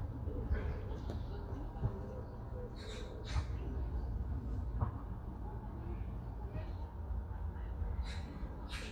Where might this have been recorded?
in a park